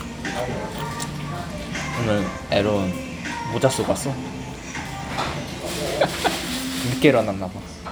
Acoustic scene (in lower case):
restaurant